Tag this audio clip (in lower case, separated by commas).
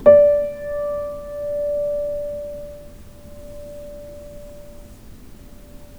musical instrument, piano, music, keyboard (musical)